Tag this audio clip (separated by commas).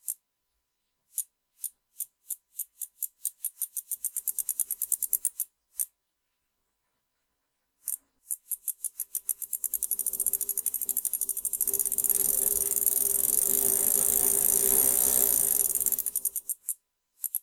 Vehicle, Bicycle